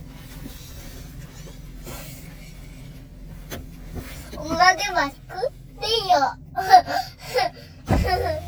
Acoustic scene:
car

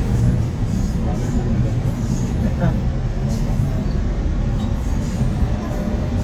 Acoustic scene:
subway train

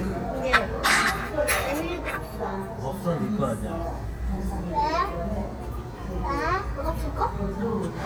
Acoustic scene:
restaurant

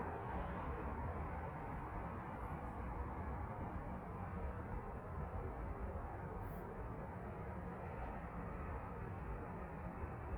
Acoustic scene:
street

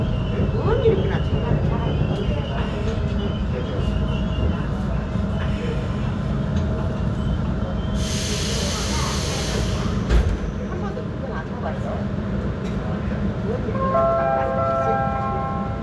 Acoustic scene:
subway train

